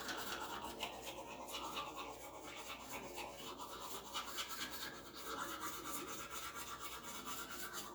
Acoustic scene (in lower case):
restroom